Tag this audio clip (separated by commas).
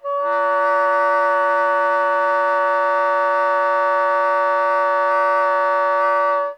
Music, Wind instrument, Musical instrument